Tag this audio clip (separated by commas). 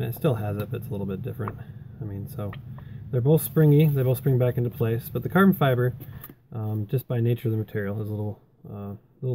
Speech